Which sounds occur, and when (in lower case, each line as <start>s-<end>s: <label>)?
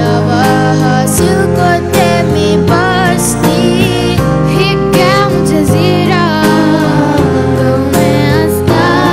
0.0s-4.2s: child singing
0.0s-9.1s: music
4.5s-7.3s: child singing
6.4s-7.9s: choir
7.5s-8.6s: child singing